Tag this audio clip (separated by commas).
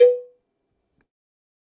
Cowbell, Bell